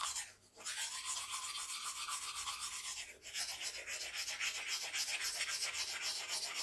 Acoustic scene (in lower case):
restroom